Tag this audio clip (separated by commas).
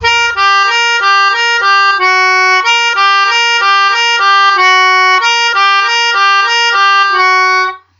Music, Keyboard (musical), Musical instrument